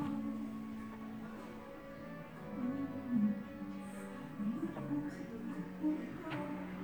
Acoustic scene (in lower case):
cafe